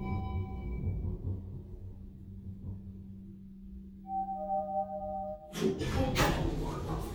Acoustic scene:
elevator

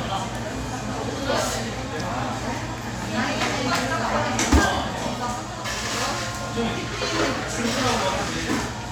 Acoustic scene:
cafe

